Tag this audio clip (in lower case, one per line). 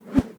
whoosh